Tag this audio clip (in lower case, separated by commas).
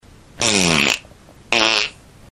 fart